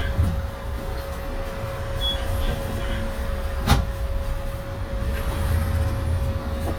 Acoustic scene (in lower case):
bus